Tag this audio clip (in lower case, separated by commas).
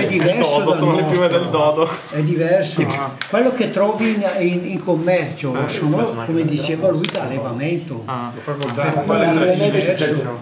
speech, conversation